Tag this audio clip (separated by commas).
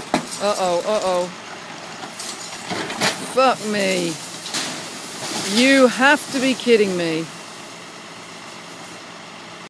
Speech, Vehicle